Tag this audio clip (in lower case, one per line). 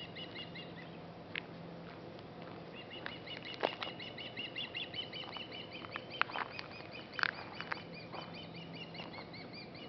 bird
bird vocalization